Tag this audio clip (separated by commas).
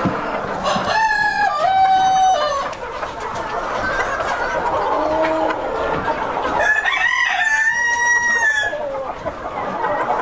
Crowing, rooster, chicken crowing, Cluck, Fowl